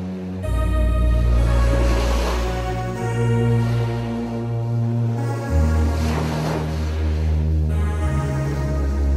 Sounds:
Music, Background music

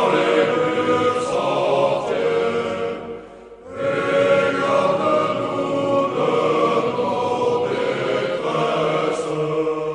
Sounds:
Music, Mantra

